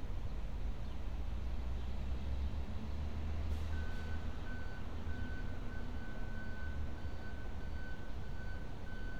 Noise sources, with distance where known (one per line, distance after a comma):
reverse beeper